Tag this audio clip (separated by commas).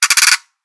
Music, Percussion, Musical instrument, pawl, Mechanisms